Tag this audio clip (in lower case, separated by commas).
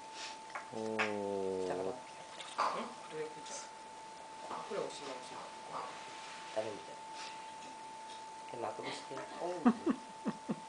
speech